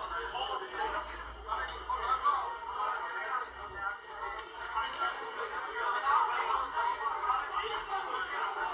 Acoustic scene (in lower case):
crowded indoor space